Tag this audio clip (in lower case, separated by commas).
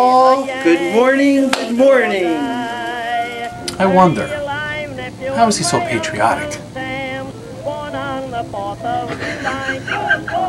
speech, music